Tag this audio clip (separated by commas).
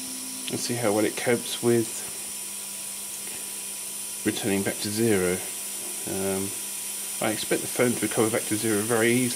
Speech